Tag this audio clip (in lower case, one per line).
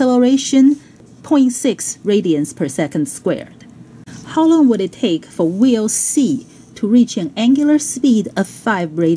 speech